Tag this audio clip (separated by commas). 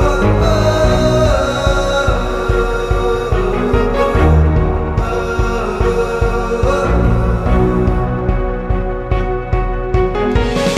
Music